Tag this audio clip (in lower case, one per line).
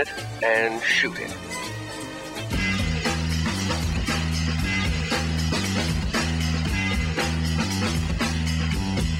speech
music